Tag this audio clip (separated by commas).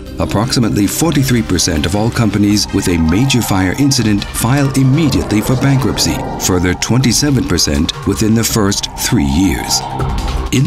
Music, Speech